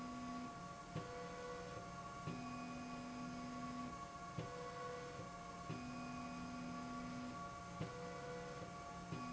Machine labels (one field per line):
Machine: slide rail